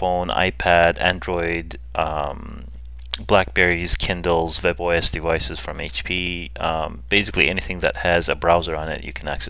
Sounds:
speech

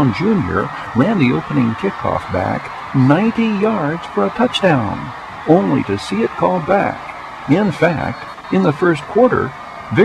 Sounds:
speech

